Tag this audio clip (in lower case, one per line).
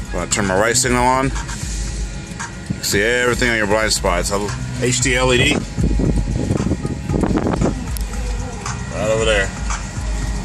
music
speech